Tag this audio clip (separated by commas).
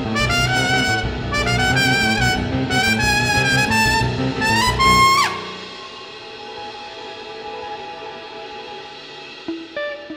Orchestra, Music